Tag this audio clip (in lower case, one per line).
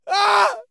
shout
screaming
yell
human voice